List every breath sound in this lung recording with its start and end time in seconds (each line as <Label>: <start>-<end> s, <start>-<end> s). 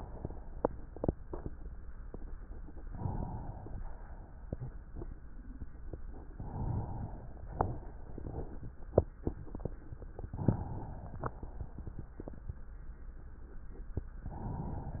Inhalation: 2.77-3.80 s, 6.27-7.31 s, 10.14-11.36 s
Exhalation: 3.80-4.84 s, 7.31-8.83 s, 11.37-12.59 s